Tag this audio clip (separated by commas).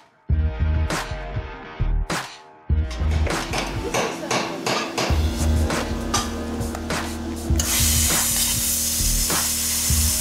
arc welding